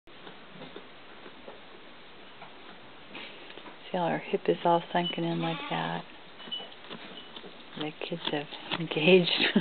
A woman is speaking while a goat bleeds